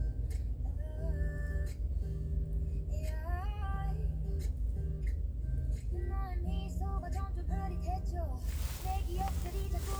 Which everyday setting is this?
car